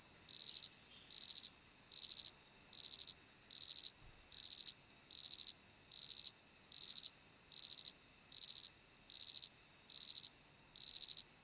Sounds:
wild animals
animal
cricket
insect

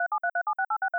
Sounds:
telephone
alarm

